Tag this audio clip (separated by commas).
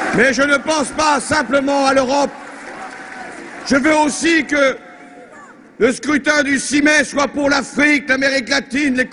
Speech